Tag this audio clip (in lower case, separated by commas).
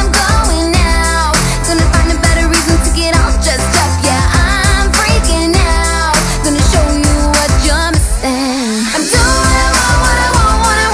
music